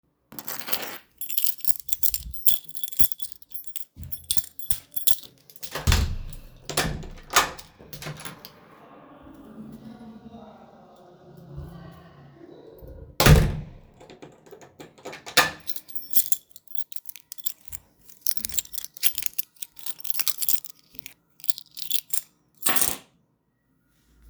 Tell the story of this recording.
I grabbed my key, went to the door, opened it and then closed it and last put my key back.